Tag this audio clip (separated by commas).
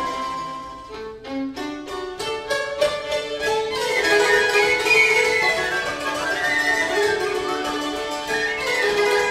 Music, Traditional music